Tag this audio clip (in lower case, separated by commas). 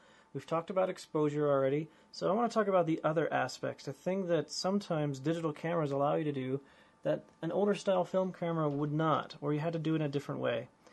speech